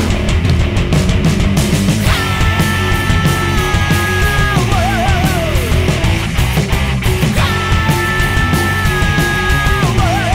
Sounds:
Music, Exciting music, Grunge, Pop music, Heavy metal, Dance music, Punk rock, Progressive rock, Rock and roll

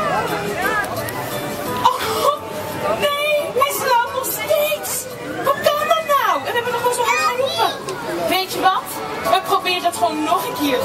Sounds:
Music, Speech

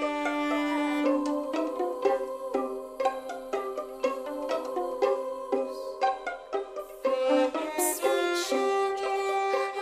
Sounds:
Musical instrument, fiddle, Music

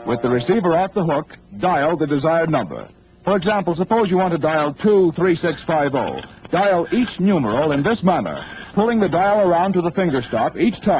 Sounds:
Speech

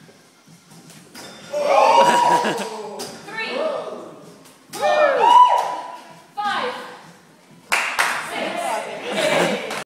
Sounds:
Clapping, Speech

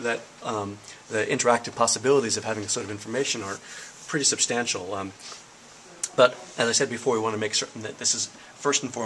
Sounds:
Speech

